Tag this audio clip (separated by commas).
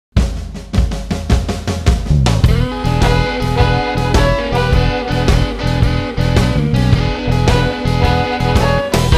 Music, Bass drum